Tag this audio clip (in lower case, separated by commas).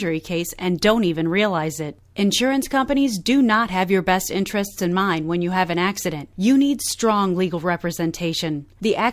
speech